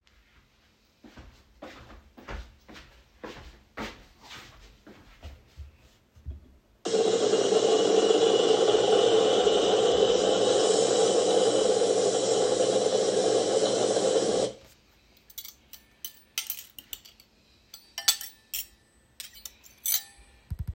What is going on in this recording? I walked into the kitchen and started the coffee machine. While the coffee was brewing, I grabbed one of the many spoons that was on top of the counter cleaned.